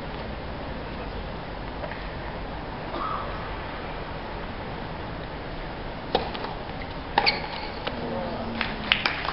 A person coughs, a racket hits a ball, and applause is heard